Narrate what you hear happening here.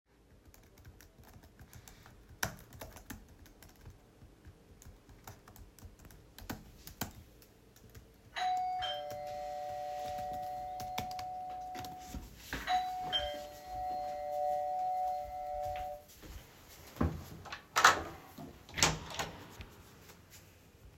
I was typing on my laptop doing Assignemnts then the door bell rings and I get out of my chair, walk to the door and open it